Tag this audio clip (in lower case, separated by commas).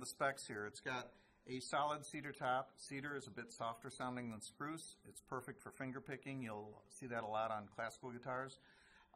speech